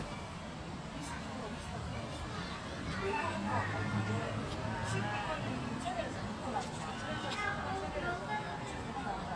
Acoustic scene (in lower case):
residential area